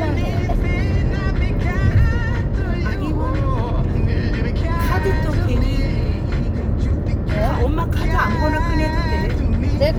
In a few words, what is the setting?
car